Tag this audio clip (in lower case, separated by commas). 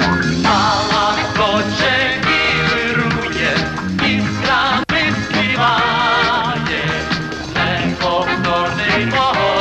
music